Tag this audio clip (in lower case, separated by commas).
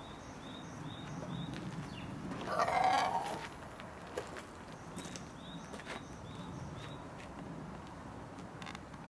crowing